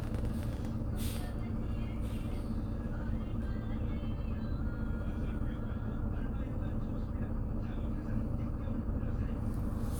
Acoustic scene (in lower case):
bus